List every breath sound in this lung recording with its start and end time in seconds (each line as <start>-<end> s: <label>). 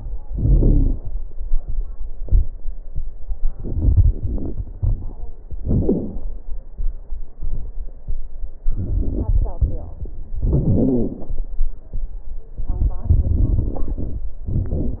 0.27-1.03 s: exhalation
0.27-1.03 s: wheeze
3.54-5.17 s: inhalation
3.54-5.17 s: crackles
5.64-6.25 s: exhalation
5.64-6.25 s: wheeze
8.69-10.00 s: inhalation
8.69-10.00 s: crackles
10.41-11.35 s: exhalation
10.41-11.35 s: wheeze
12.61-14.27 s: inhalation
12.61-14.27 s: crackles
14.48-15.00 s: exhalation
14.48-15.00 s: crackles